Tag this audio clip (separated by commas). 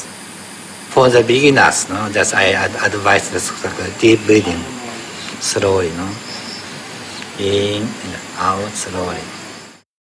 Speech